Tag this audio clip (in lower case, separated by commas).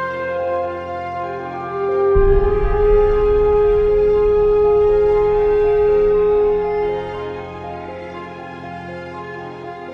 sad music, music